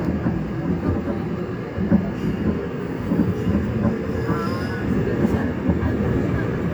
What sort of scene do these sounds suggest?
subway train